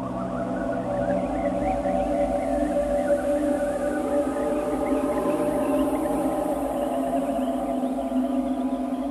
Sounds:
ambient music, music

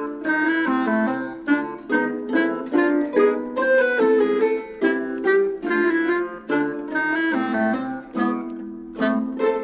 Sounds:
music

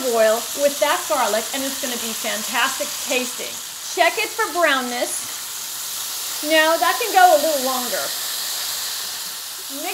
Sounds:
speech, inside a small room

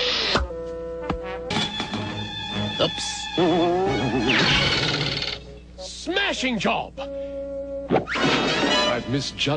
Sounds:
music, speech

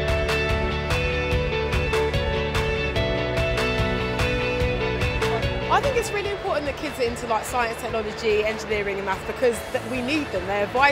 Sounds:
speech, music

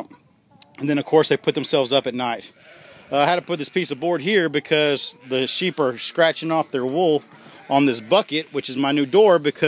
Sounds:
rooster, cluck, speech

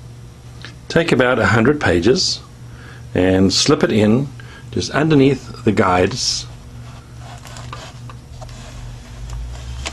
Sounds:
speech

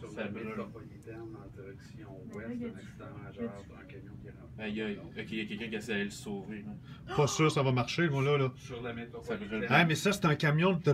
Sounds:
speech

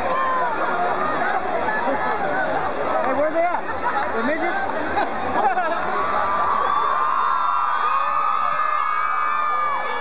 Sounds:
speech

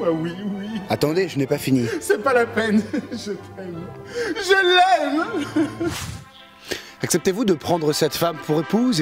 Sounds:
speech, music

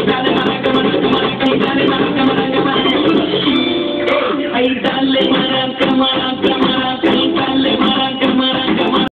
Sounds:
maraca, music

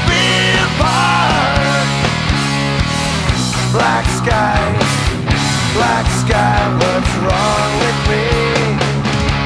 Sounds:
music, rock music, punk rock, progressive rock

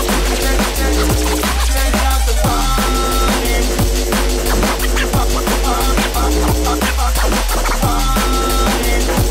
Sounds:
sound effect, music

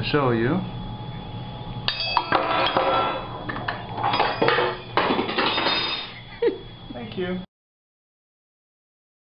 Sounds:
speech, glass

